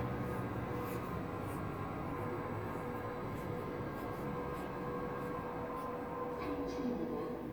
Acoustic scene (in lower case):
elevator